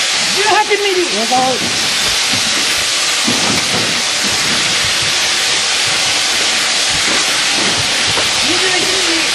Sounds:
Speech

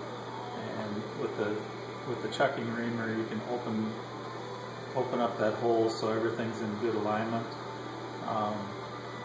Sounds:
Speech, Music

